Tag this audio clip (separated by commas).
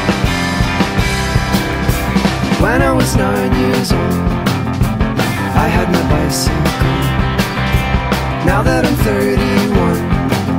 Snare drum, Drum kit, Drum, Rimshot, Bass drum, Percussion